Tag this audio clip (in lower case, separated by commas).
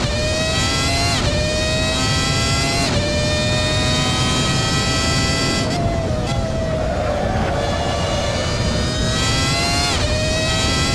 car, vroom, medium engine (mid frequency), vehicle, engine